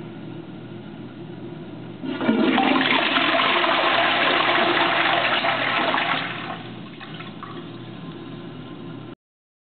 A toilet is flushed and water rushes quickly